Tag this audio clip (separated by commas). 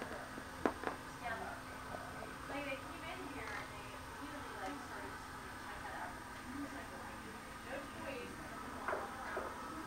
Speech